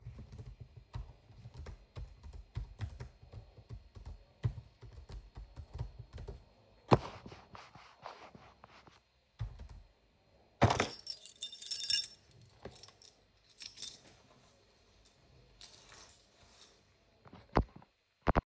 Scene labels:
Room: bedroom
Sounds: keyboard typing, keys

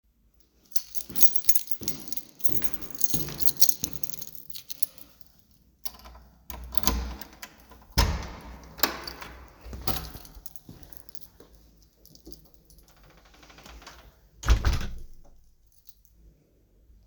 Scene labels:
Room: hallway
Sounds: keys, footsteps, door (more than once)

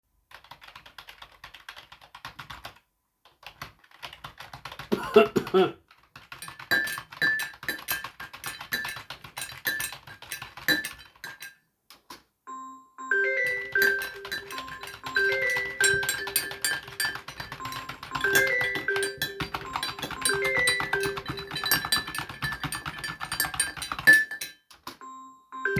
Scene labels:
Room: office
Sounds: keyboard typing, cutlery and dishes, phone ringing

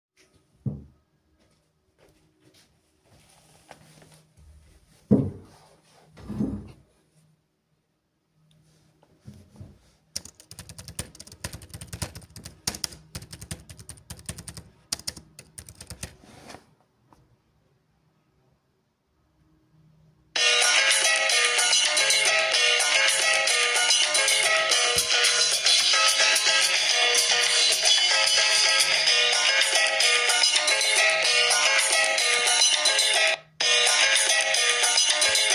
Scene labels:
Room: office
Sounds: keyboard typing, phone ringing

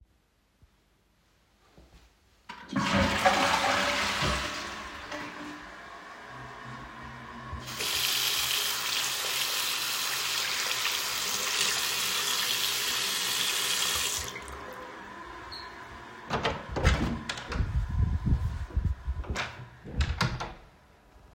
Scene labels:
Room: bathroom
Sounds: toilet flushing, running water, door (more than once)

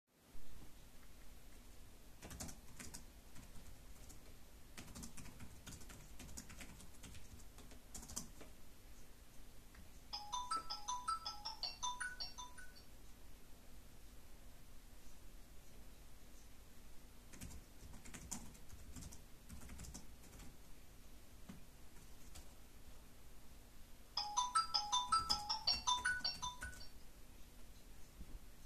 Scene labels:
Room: living room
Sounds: keyboard typing, phone ringing

